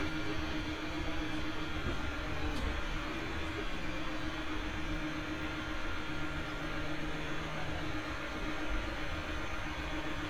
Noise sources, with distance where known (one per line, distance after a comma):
engine of unclear size